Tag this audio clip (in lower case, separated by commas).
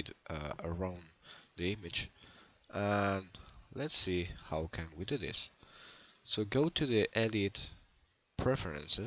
speech